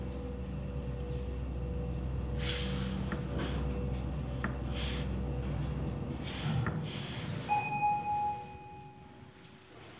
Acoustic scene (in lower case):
elevator